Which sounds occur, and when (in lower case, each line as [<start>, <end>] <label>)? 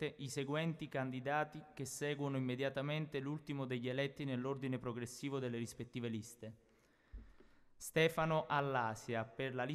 [0.00, 9.74] background noise
[0.05, 1.56] man speaking
[1.69, 6.46] man speaking
[6.59, 7.72] breathing
[7.86, 9.74] man speaking